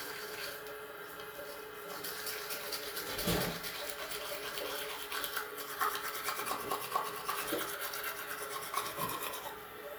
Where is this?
in a restroom